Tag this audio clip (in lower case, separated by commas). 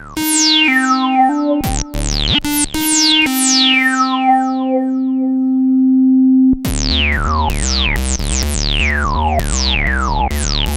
musical instrument, synthesizer, music